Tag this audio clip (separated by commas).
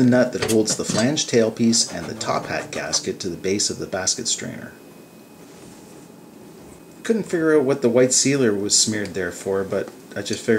Speech